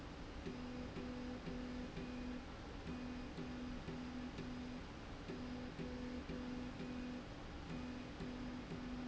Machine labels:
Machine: slide rail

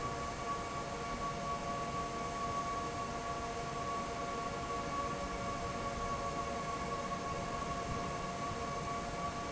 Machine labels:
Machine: fan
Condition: normal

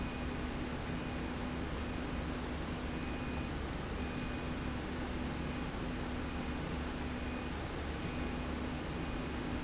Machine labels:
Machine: slide rail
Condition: normal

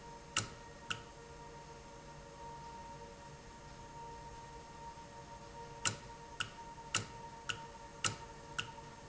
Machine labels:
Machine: valve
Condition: normal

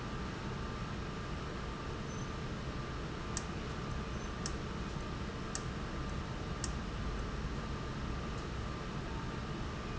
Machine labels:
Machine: valve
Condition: abnormal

